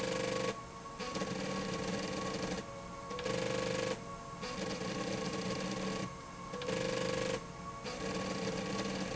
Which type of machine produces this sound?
slide rail